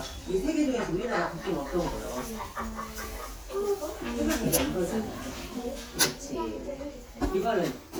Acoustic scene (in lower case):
crowded indoor space